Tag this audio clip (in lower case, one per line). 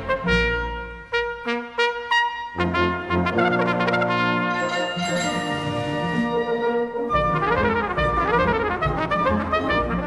playing cornet